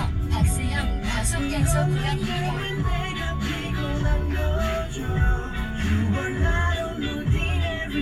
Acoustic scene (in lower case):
car